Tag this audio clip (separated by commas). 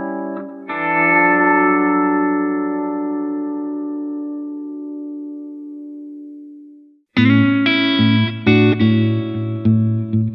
Effects unit, Plucked string instrument, Distortion, Music, Guitar, Musical instrument